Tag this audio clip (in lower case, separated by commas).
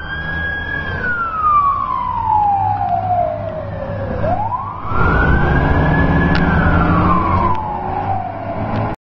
truck, vehicle